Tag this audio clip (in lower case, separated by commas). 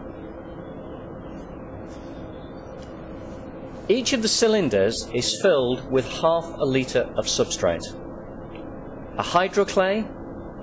speech